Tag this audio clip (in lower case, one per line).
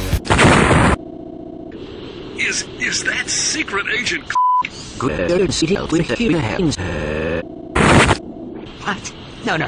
speech